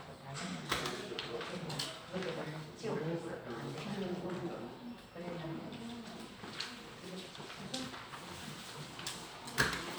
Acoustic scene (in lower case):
crowded indoor space